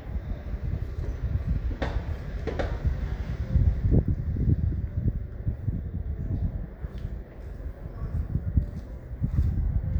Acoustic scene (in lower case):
residential area